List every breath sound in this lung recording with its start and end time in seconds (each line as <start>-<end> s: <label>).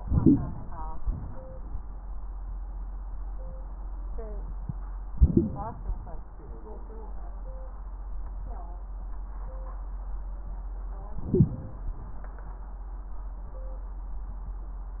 0.00-0.67 s: inhalation
1.01-1.52 s: exhalation
5.15-5.78 s: inhalation
11.18-11.65 s: inhalation